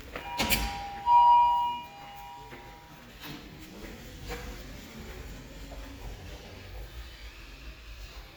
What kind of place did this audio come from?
elevator